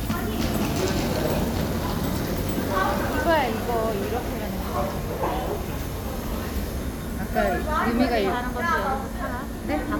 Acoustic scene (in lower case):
subway station